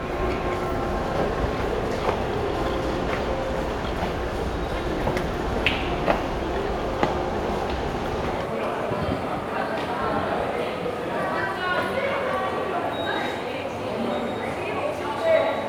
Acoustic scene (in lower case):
subway station